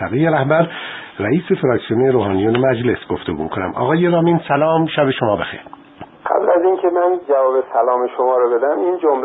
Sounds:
speech
radio

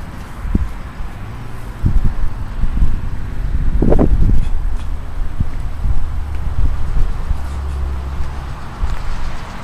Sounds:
vehicle

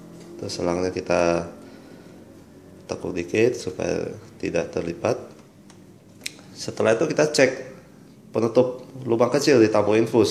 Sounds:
speech

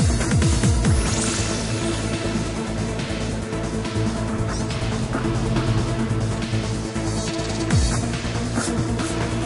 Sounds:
techno
electronic music
music

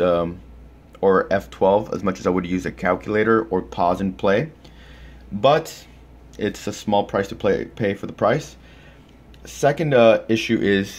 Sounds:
speech

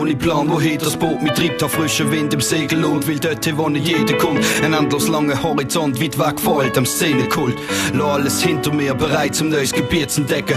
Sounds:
music

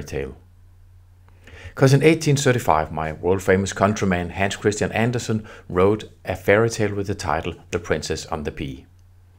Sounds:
speech

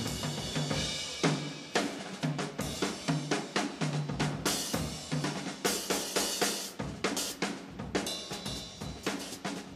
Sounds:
drum
music
rimshot
percussion
musical instrument
drum kit

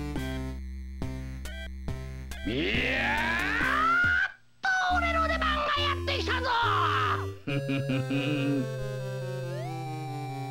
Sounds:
speech
music

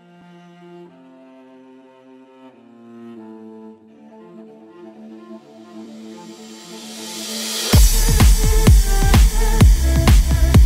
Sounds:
cello
bowed string instrument

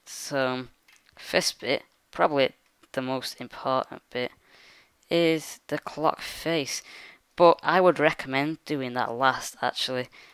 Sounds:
speech

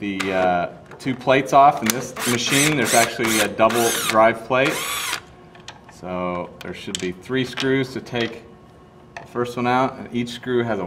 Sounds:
tools
speech

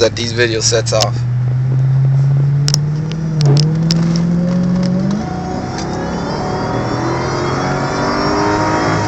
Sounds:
speech

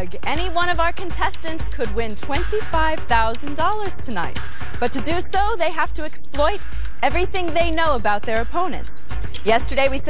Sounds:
music
speech

